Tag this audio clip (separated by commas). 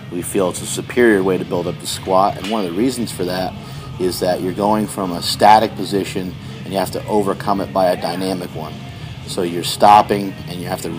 Speech, Music